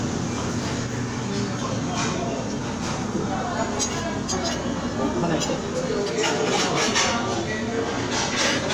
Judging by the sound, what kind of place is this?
crowded indoor space